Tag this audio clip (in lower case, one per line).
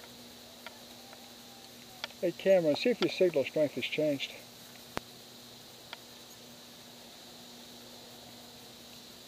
speech
outside, rural or natural